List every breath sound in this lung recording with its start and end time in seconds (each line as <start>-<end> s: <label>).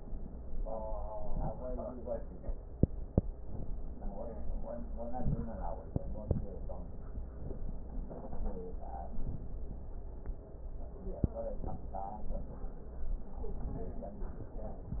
1.05-1.75 s: inhalation
3.31-3.90 s: inhalation